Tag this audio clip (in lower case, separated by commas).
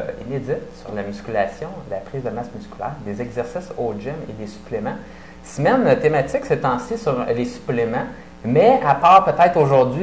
speech